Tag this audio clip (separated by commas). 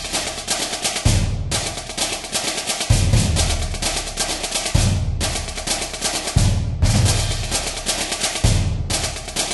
Music, Percussion